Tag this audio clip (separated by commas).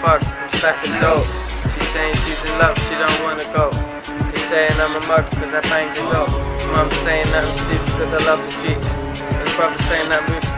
Music, Speech